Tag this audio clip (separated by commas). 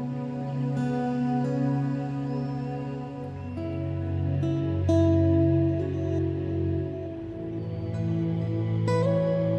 Music